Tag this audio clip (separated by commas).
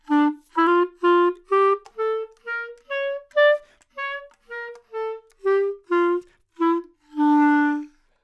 Music, Musical instrument, woodwind instrument